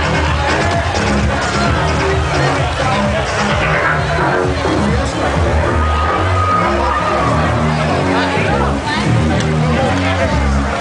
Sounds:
music
speech

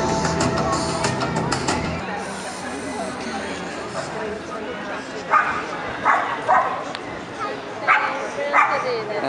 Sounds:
speech
music

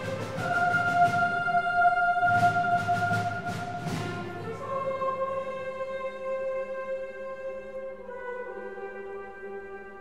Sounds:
music

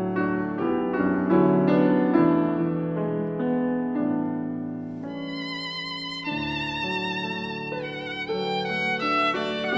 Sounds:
music
musical instrument
violin
bowed string instrument

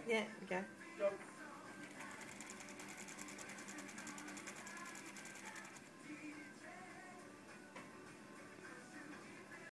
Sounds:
speech
music

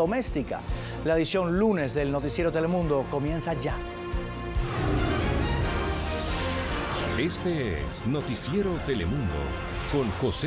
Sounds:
speech
music

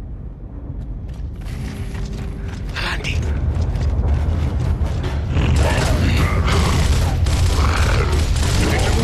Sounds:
mechanisms

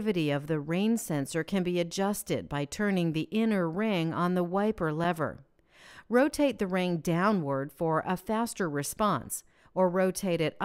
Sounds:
speech

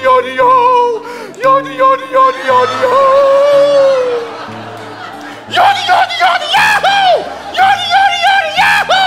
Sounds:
yodelling

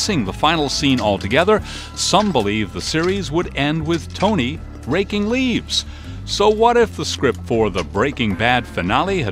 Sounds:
speech
music

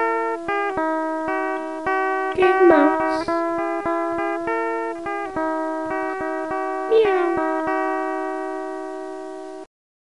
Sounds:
speech
music

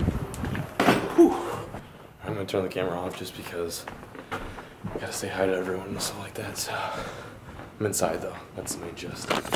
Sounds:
speech

